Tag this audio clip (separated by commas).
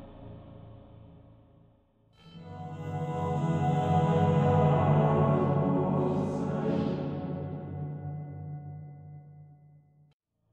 Mantra, Music